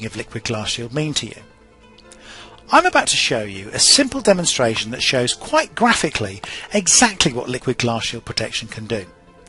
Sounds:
speech, music

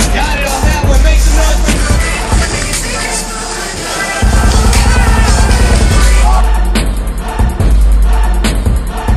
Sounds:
music

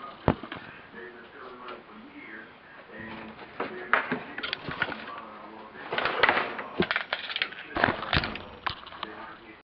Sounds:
speech

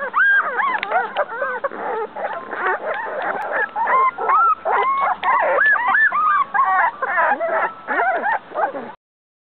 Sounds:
domestic animals, animal

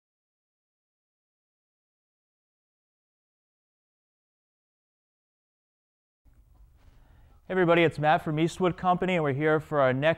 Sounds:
speech

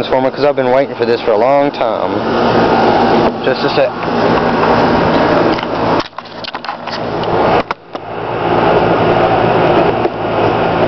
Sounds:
speech

